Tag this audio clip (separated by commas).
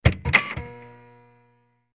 Printer, Mechanisms